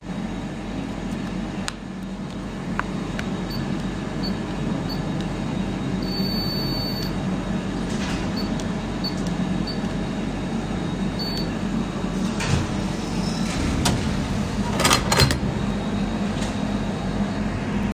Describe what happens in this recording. I walked to the window, opened it, and then closed it again. Footsteps and the window opening and closing sounds are clearly audible.